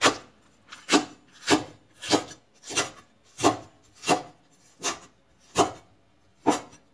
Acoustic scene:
kitchen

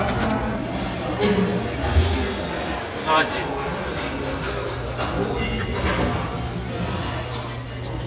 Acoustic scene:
restaurant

